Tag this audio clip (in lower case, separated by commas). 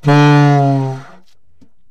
wind instrument, musical instrument, music